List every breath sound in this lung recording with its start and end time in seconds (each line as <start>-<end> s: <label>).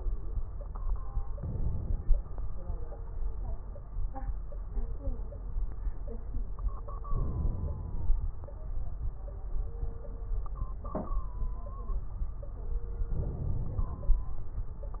1.32-2.13 s: inhalation
1.32-2.13 s: crackles
7.08-8.23 s: inhalation
7.08-8.23 s: crackles
13.10-14.24 s: inhalation
13.10-14.24 s: crackles